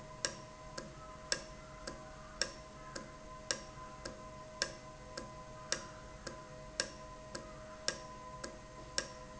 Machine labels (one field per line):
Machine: valve